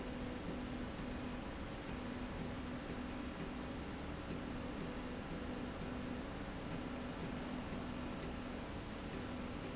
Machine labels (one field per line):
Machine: slide rail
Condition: normal